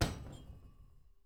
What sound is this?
wooden cupboard closing